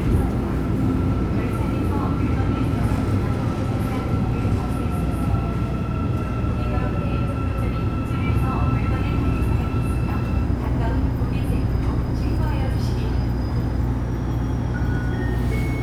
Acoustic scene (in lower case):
subway station